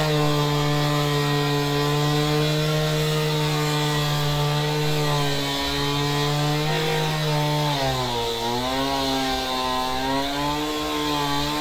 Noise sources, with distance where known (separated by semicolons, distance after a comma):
unidentified powered saw, near